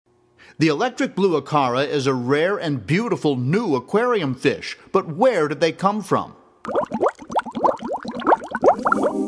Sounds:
Speech, Music

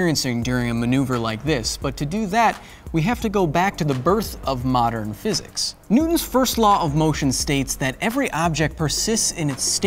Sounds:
people finger snapping

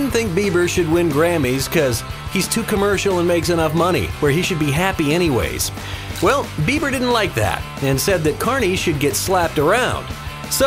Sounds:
Music, Speech

